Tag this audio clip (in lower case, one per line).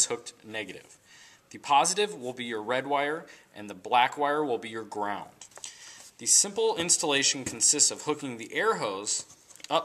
speech